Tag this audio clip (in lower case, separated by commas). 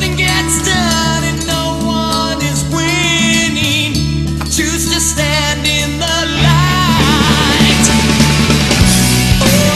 music, singing, heavy metal, inside a large room or hall